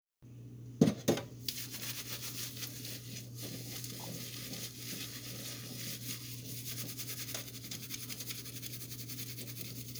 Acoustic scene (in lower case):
kitchen